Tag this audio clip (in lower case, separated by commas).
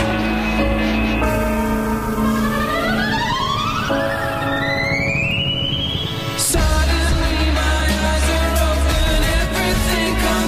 music